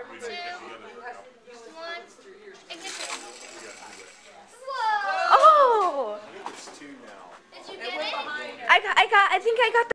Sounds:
speech

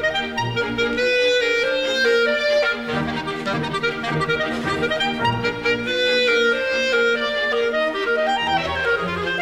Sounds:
playing clarinet

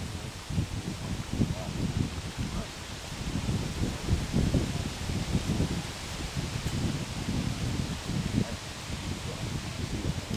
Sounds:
quack, animal

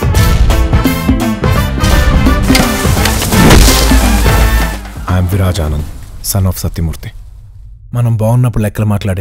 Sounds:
crack, speech, music

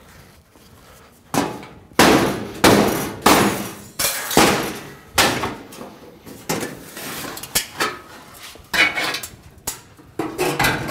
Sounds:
hammer

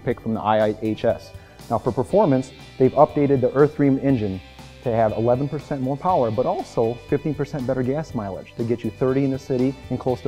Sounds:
speech, music

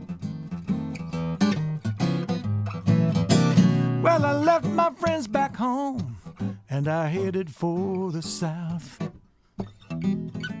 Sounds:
plucked string instrument, strum, music, guitar, bass guitar, acoustic guitar, musical instrument

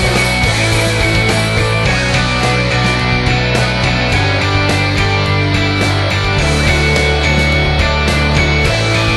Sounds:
music

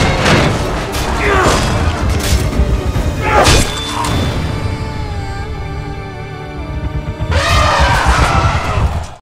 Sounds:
music, animal

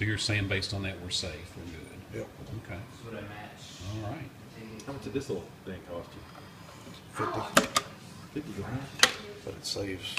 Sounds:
speech, inside a small room

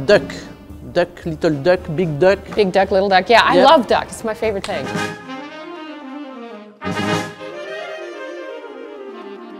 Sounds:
speech, music

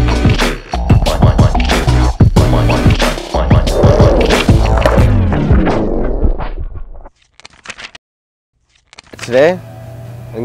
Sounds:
speech, outside, urban or man-made, music

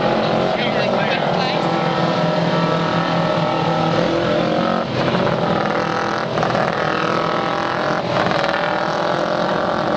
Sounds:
vehicle, speech, car passing by, car

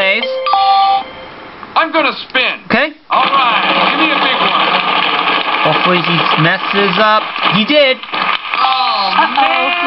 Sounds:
speech, music

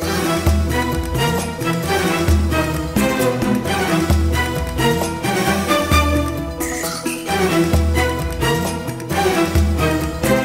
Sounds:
blues, music, rhythm and blues, exciting music

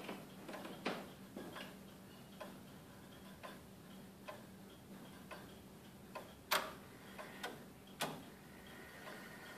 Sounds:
tick-tock, tick

